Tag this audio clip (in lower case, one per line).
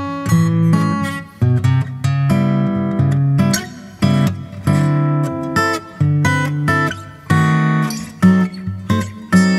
guitar
musical instrument
music
acoustic guitar
plucked string instrument